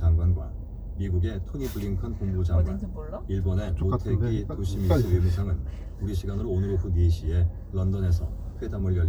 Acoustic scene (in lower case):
car